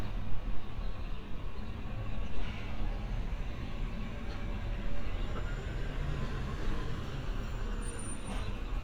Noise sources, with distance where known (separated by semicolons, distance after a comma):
large-sounding engine